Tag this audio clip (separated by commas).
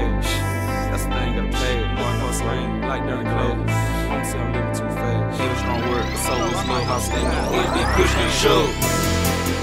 Rhythm and blues, Music